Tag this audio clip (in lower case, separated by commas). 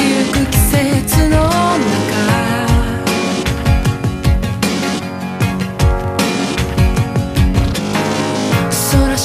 music